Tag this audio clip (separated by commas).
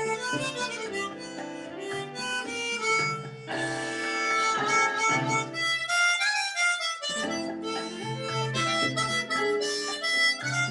Music, Harmonica